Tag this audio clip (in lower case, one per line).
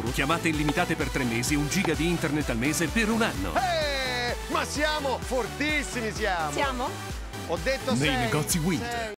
music
speech